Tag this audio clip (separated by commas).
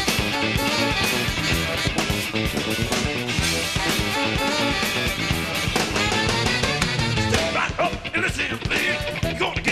Funk, Music, Disco, Rhythm and blues